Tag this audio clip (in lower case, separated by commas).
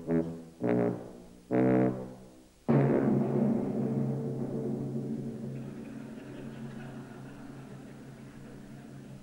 saxophone, timpani, musical instrument, music